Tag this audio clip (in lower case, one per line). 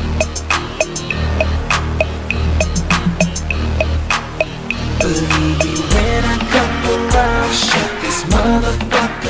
music